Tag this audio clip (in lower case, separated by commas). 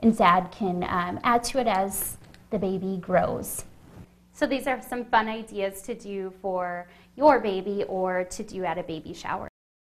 speech, inside a small room